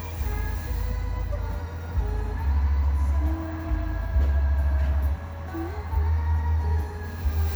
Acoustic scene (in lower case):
car